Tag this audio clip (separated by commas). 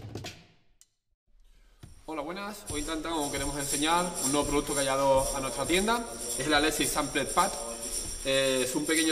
Speech, Music